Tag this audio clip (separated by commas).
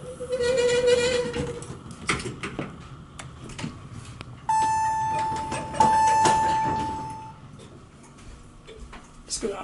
inside a large room or hall, Speech, inside a small room